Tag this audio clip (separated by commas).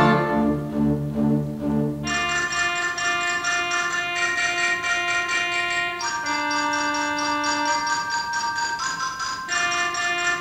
Organ, Music, Classical music, Musical instrument, Piano, inside a large room or hall